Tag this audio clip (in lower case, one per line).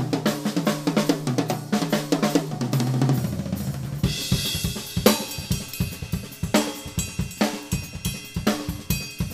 musical instrument
hi-hat
drum
cymbal
drum kit
music